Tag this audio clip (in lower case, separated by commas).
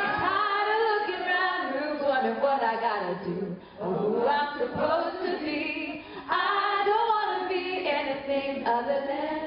female singing